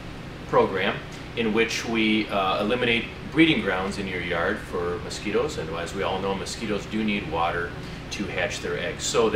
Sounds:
Speech

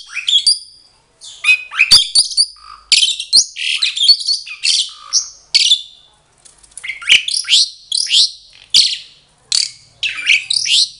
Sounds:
mynah bird singing

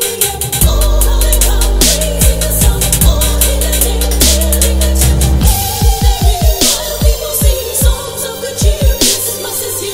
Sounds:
Music, Electronic music, Dubstep

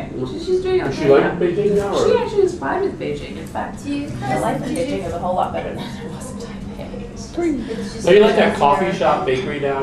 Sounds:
Speech

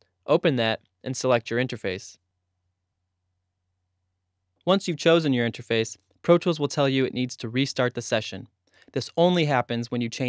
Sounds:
Speech

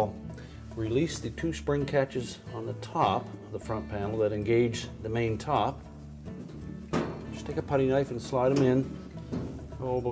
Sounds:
Speech, Music

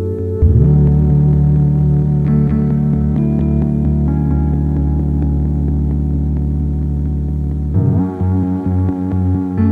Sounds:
Music

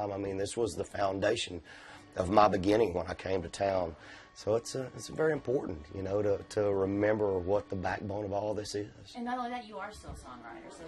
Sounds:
Speech

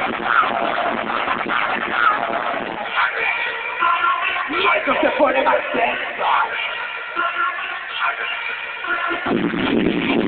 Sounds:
Music

